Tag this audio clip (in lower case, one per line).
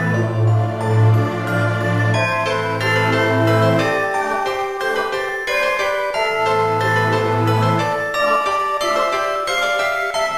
music